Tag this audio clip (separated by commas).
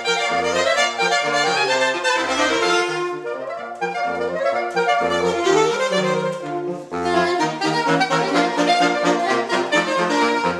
Brass instrument, Saxophone, Musical instrument, Music